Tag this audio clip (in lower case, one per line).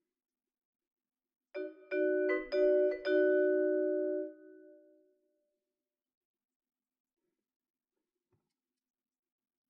playing vibraphone